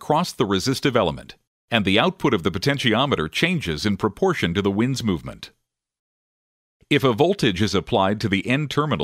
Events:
[0.00, 1.41] male speech
[1.65, 5.52] male speech
[6.86, 9.03] male speech

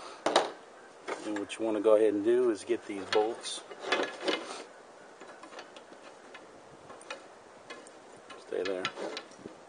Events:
[0.00, 9.65] mechanisms
[0.23, 0.54] generic impact sounds
[1.22, 3.58] male speech
[1.30, 1.43] generic impact sounds
[3.06, 3.22] generic impact sounds
[3.84, 4.07] generic impact sounds
[4.26, 4.59] generic impact sounds
[5.17, 6.03] generic impact sounds
[6.26, 6.38] generic impact sounds
[6.79, 7.14] generic impact sounds
[7.61, 7.87] generic impact sounds
[8.27, 9.21] generic impact sounds
[8.48, 9.19] male speech
[9.41, 9.57] generic impact sounds

